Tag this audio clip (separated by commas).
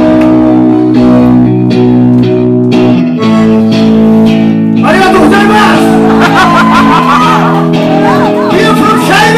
Music, Speech